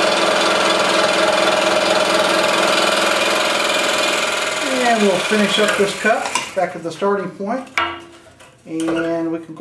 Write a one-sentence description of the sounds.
Humming and vibrations of a power tool with a man speaking then clinks